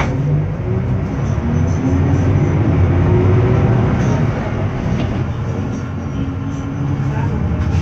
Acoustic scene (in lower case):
bus